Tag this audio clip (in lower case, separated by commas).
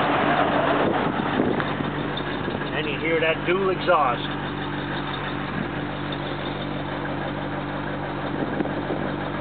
outside, urban or man-made, vehicle, car, speech